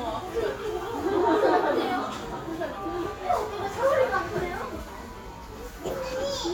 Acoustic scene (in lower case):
crowded indoor space